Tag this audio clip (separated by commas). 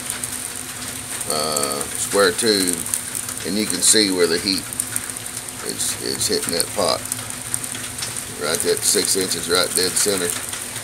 Frying (food)